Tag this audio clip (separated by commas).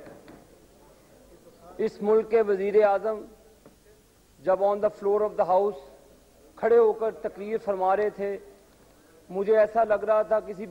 Narration, Male speech, Speech